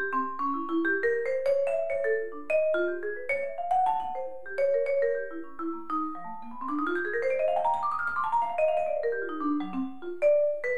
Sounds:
playing vibraphone

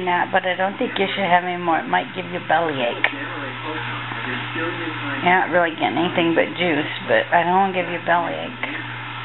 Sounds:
Speech

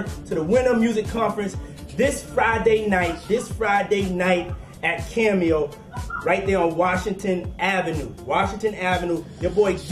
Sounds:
Music, Speech

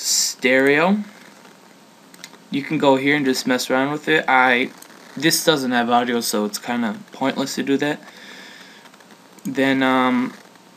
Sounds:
Speech

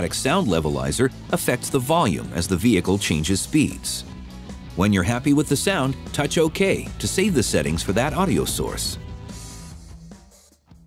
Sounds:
Music, Speech

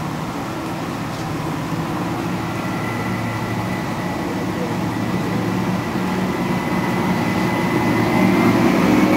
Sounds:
Train, Vehicle

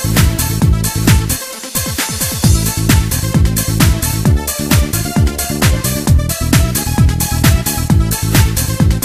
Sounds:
Music

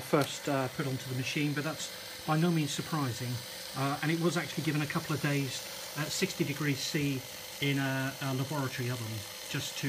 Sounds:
inside a small room, Speech

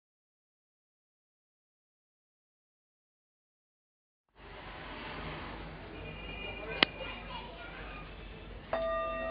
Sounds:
Music, Singing bowl

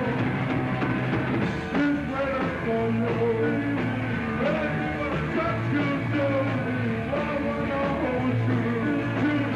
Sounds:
Music

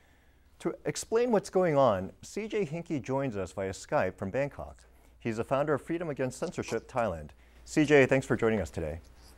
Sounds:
Speech, man speaking

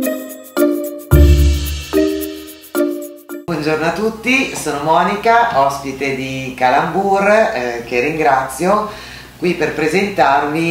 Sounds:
Music, Speech

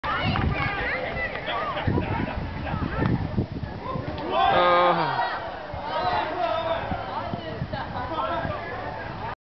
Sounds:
Speech

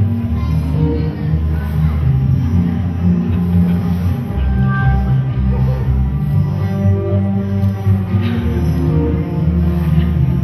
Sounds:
Music

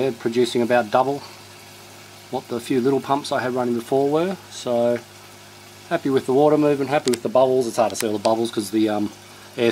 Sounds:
Speech

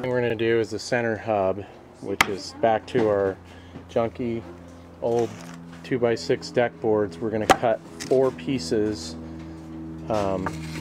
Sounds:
Speech

